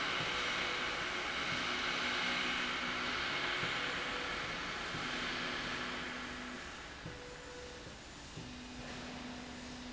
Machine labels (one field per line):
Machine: slide rail